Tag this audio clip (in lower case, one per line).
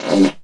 fart